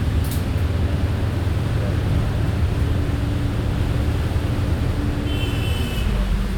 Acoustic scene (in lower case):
bus